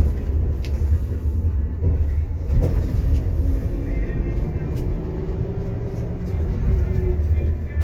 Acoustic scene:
bus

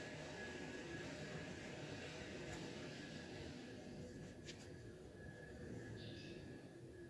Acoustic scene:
elevator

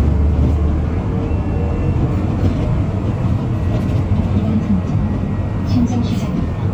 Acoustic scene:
bus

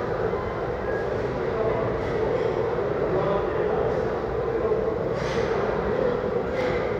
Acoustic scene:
restaurant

